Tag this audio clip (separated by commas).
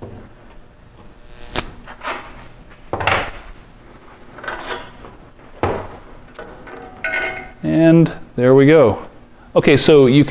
Speech